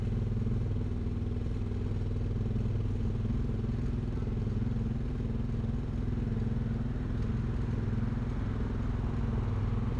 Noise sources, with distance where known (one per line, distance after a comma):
small-sounding engine, near